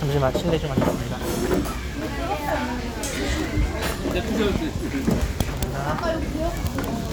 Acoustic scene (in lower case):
restaurant